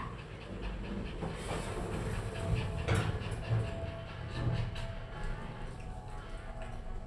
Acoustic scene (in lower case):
elevator